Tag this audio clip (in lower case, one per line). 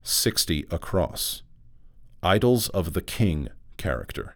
speech
human voice
man speaking